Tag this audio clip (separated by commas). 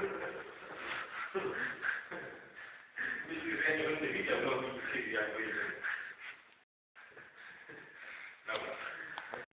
Speech